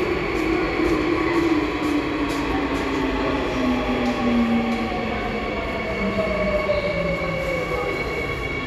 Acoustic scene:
subway station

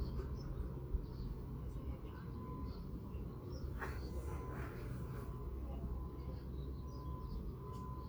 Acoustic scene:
park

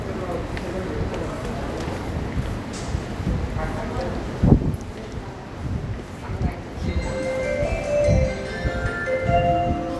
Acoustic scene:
subway station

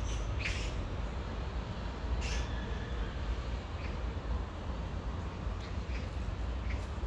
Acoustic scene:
park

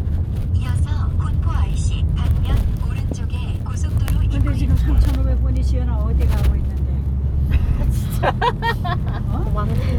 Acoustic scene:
car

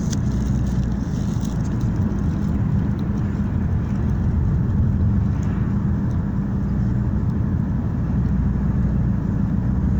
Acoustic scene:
car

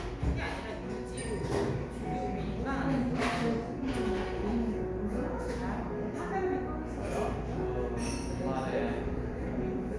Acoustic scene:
cafe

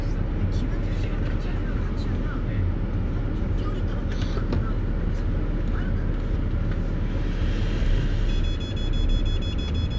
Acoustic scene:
car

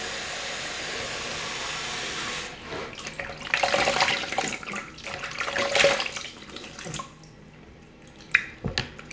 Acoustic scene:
restroom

